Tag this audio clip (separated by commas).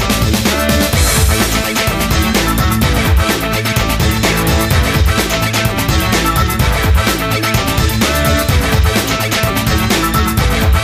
Music, Theme music